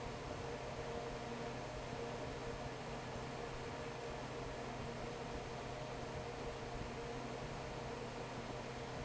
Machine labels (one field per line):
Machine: fan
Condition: normal